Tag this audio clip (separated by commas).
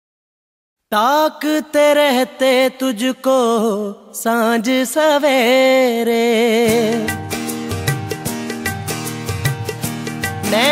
Music of Bollywood